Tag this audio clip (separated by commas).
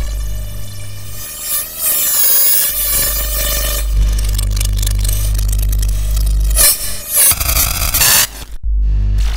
Static, Hum, Mains hum